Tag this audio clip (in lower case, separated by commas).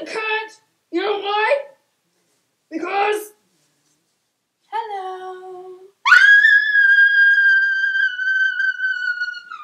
inside a small room, speech